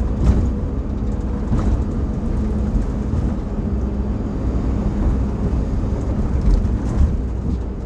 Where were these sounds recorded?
on a bus